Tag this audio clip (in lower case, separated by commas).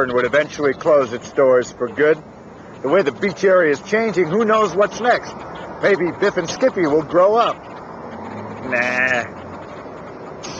speech